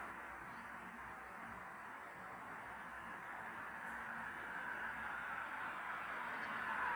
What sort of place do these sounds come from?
street